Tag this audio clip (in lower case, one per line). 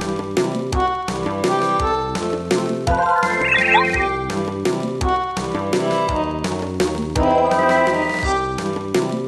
music